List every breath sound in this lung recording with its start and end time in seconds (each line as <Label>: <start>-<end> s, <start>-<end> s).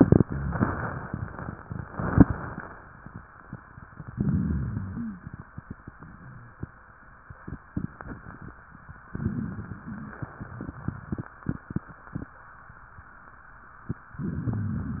Inhalation: 4.08-5.28 s, 9.10-10.28 s, 14.15-15.00 s
Wheeze: 4.90-5.18 s, 6.14-6.59 s
Rhonchi: 4.08-4.90 s
Crackles: 9.10-10.28 s, 14.15-15.00 s